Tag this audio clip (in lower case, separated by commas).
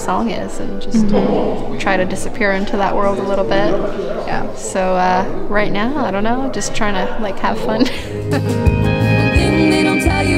music, speech